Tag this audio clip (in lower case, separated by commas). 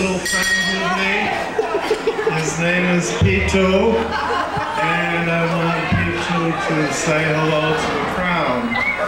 chatter, speech